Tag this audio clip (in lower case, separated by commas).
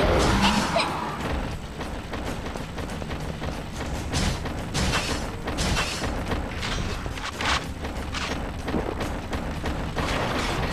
music